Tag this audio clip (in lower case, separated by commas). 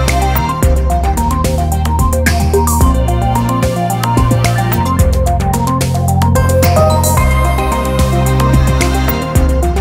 background music, music